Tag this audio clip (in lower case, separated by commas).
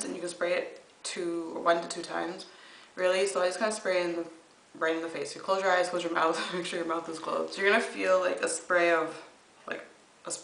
speech